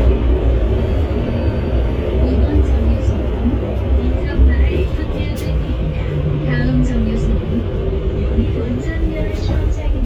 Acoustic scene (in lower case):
bus